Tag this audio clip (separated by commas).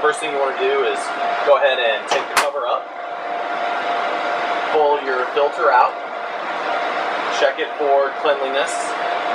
Speech